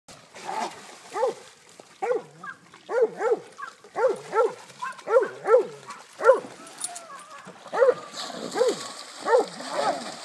A dog barks while other dogs park in the distance, water splashes, and a pig snorts